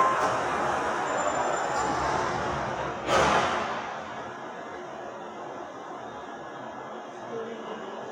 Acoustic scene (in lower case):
subway station